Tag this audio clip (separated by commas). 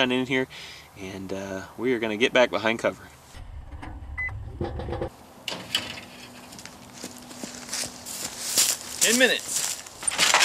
Speech